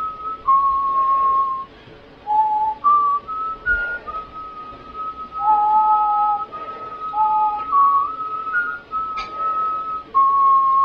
Someone whistles then someone else joins in and whistles as well